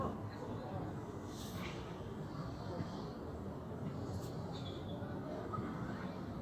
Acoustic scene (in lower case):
park